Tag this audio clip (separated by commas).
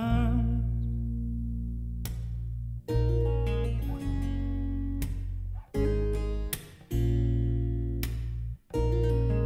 Music